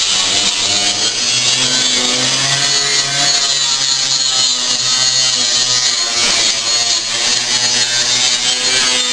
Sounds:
drill

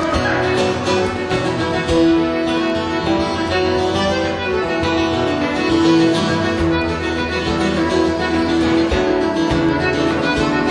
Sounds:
music

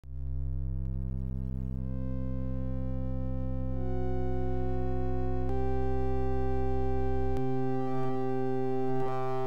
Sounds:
soundtrack music, music

